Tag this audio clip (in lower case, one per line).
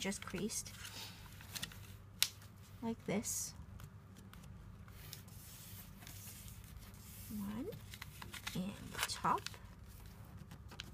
speech